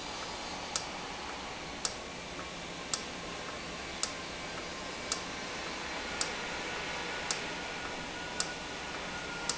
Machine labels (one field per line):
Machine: valve